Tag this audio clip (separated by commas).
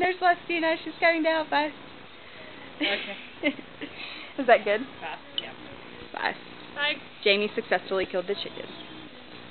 Speech